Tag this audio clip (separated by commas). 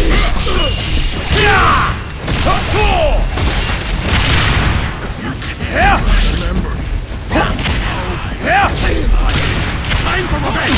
Speech